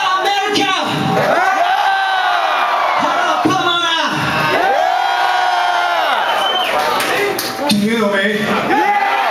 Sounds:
Speech

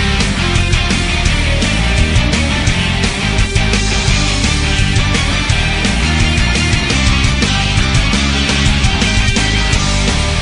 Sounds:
Music

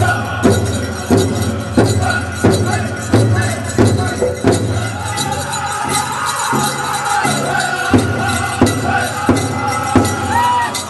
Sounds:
Music

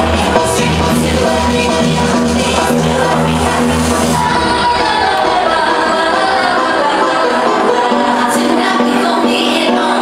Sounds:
Sound effect

